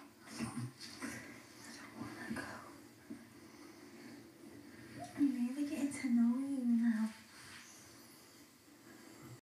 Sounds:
Speech

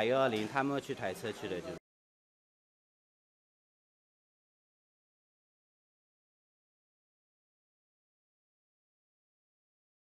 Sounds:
Speech

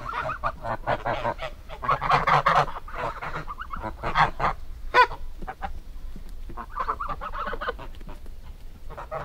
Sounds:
rooster

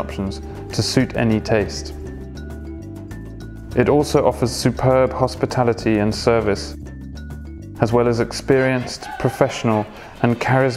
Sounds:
Music, Speech

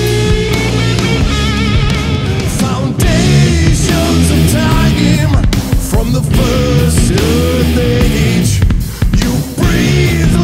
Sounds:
Music

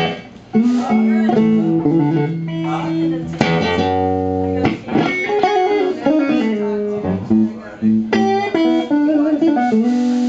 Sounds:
Music, Speech

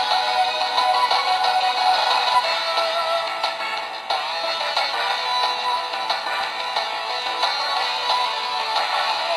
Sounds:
Music, Video game music

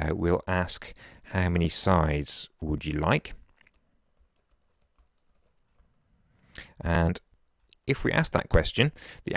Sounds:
Speech

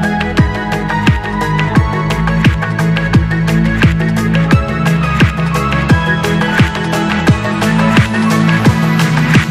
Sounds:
Trance music

